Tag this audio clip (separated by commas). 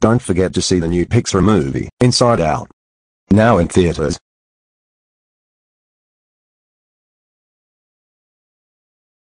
Speech